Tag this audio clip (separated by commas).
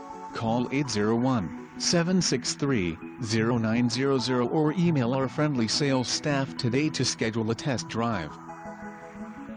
Speech, Music